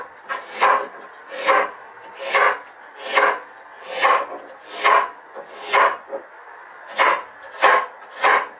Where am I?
in a kitchen